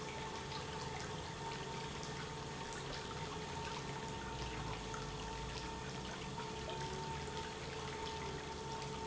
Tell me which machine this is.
pump